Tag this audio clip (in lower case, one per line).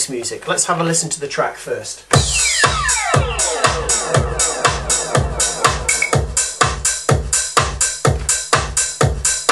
house music
speech
music